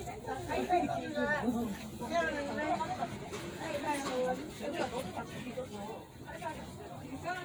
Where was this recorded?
in a residential area